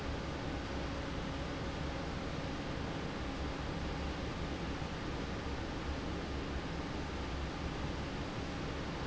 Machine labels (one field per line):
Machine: fan